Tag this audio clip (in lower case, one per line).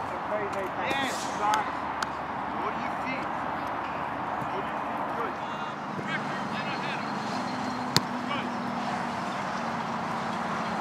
speech